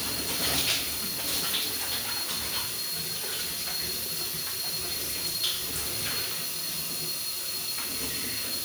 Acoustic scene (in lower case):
restroom